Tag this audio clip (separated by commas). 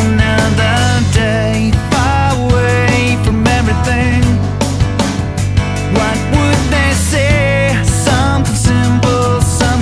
Music